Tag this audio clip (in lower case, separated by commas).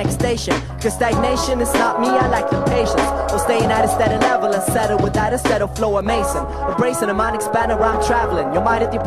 music